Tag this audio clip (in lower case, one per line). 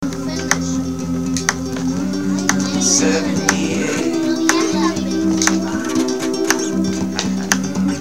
acoustic guitar
human voice
guitar
musical instrument
music
plucked string instrument